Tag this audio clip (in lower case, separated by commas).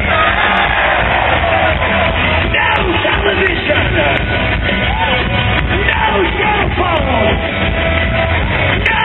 speech, music